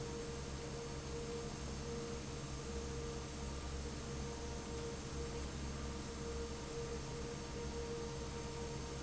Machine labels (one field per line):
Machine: fan